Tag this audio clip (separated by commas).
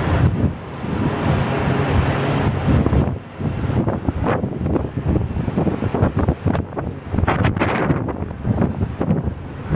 outside, urban or man-made, Vehicle, Aircraft, Fixed-wing aircraft